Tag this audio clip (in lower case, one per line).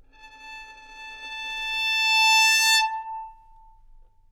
bowed string instrument
music
musical instrument